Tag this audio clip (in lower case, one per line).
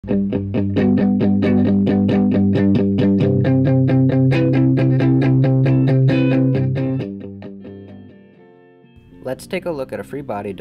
music
speech